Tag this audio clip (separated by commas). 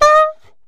Musical instrument, Music, woodwind instrument